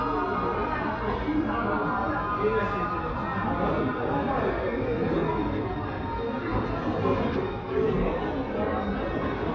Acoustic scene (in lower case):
crowded indoor space